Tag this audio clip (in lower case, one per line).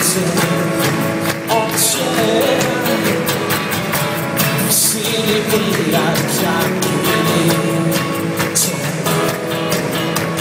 music